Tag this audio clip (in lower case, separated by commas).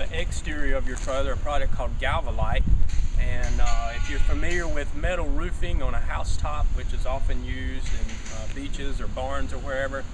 speech